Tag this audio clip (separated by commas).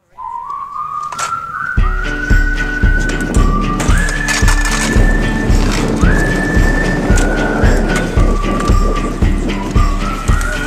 outside, rural or natural, Music, Skateboard